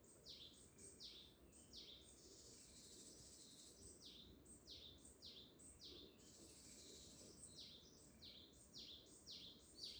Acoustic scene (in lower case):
park